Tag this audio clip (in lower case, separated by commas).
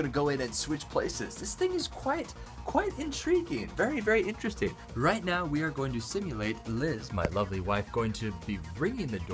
music, speech